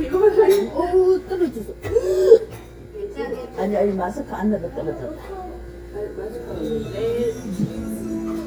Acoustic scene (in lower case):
restaurant